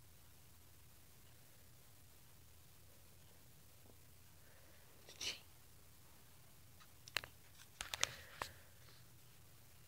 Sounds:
Speech, Breathing

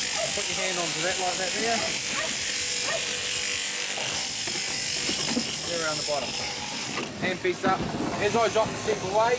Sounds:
Animal, outside, urban or man-made, Speech, electric razor

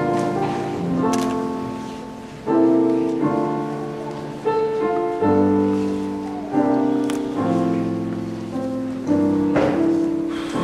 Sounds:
Musical instrument, Music

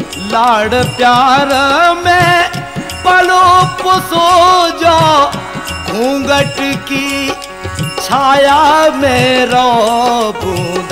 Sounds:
Music, Folk music

